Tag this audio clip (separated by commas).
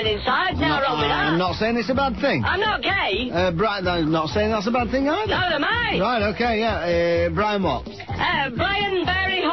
Music, Speech